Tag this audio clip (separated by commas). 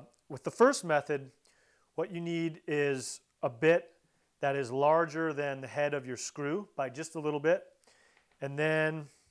Speech